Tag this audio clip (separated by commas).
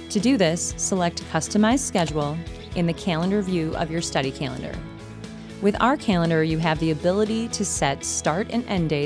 Speech, Music